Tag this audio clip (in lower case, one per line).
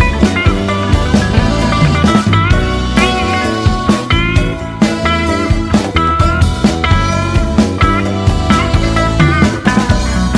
psychedelic rock